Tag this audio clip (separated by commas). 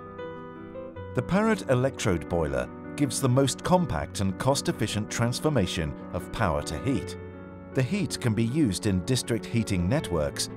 Speech